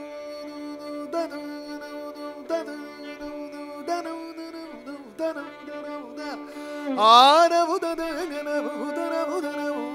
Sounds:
carnatic music, music, musical instrument

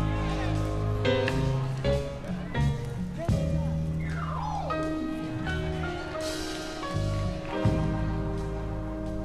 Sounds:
music, new-age music, speech

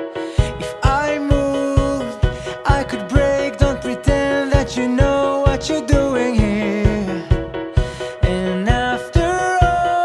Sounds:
music

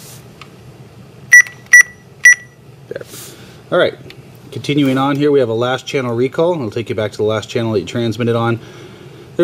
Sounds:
speech, buzzer

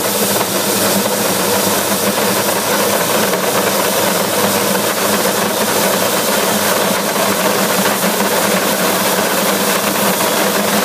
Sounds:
engine

